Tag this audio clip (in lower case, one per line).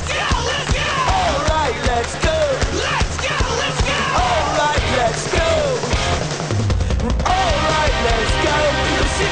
pop music
music